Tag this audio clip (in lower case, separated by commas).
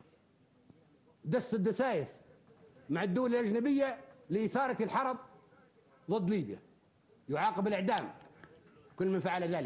narration, male speech, speech